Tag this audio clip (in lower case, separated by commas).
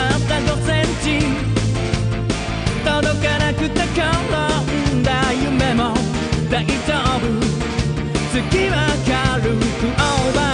music